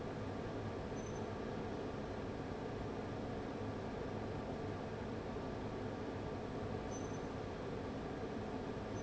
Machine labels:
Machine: fan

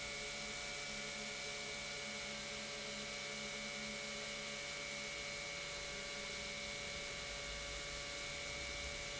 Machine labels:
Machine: pump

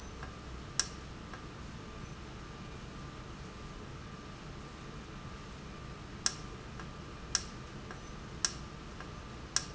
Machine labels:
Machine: valve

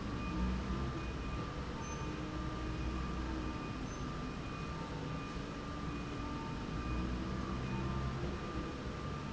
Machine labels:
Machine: slide rail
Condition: normal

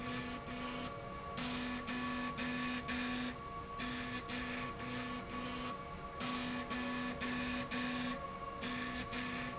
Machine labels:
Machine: slide rail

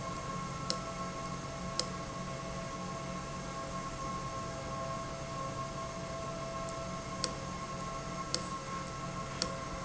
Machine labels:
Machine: valve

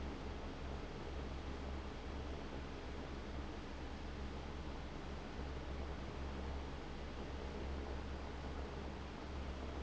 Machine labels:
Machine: fan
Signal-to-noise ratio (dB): 6 dB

